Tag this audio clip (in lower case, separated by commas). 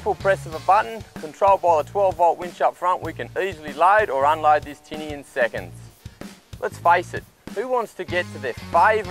speech, music